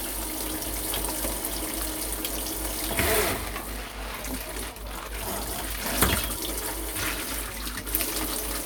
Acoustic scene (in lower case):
kitchen